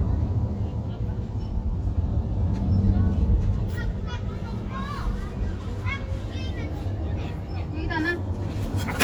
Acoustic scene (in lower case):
residential area